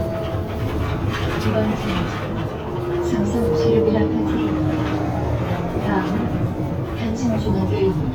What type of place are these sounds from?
bus